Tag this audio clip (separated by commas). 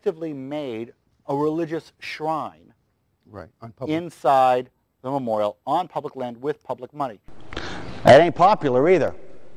man speaking, monologue, Speech